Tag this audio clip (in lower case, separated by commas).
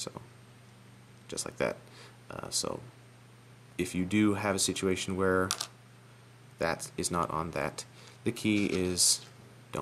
speech